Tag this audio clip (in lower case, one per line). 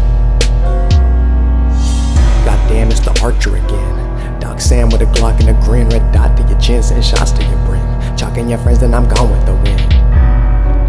music